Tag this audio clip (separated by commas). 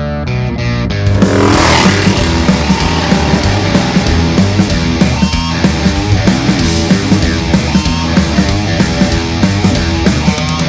Music, Reggae